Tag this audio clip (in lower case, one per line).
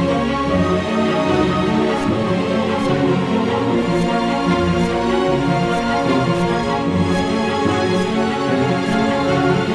music